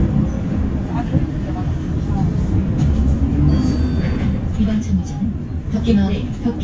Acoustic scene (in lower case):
bus